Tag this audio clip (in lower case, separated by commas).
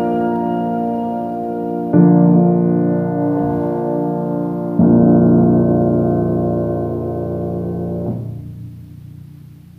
music, musical instrument, keyboard (musical), piano